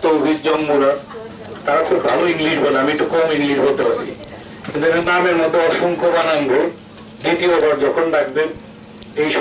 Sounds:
Speech, man speaking, monologue

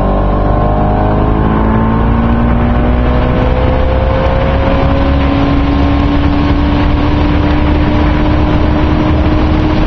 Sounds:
Vehicle

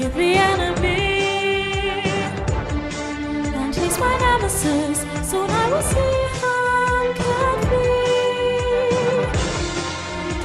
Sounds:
Music, Female singing

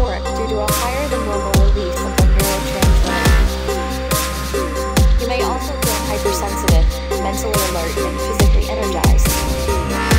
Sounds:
Speech, Dubstep, Electronic music, Music

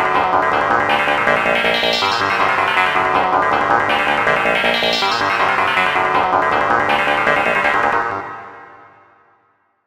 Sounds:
Music

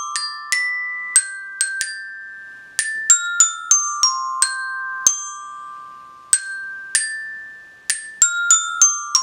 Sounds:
playing glockenspiel

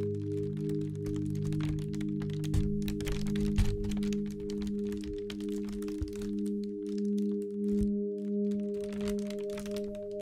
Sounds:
Ambient music, Music

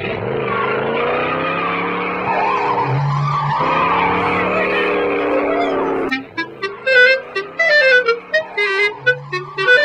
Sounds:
Music, Wind instrument

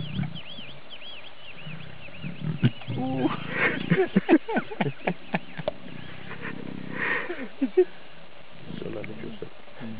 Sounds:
Wild animals, Animal, Male speech, roaring cats, Speech, lions growling

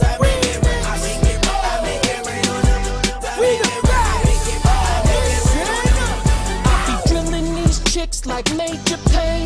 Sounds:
Music

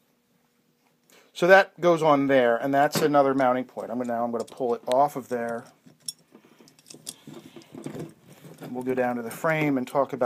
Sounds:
Speech, inside a small room

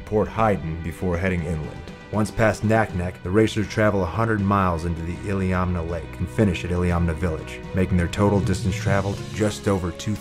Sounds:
Speech, Music

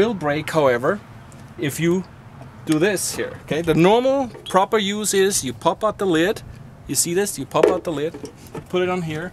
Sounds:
Speech

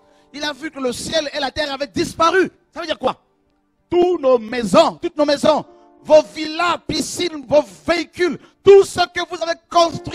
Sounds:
Speech, Music

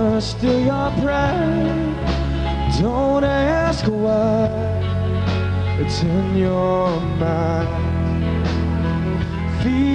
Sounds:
Music, Male singing

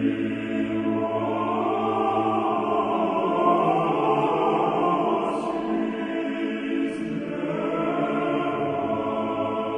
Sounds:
Mantra

